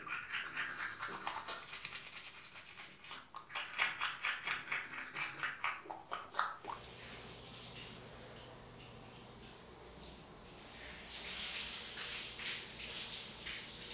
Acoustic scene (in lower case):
restroom